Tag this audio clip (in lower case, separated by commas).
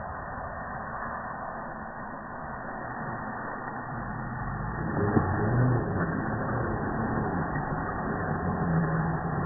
truck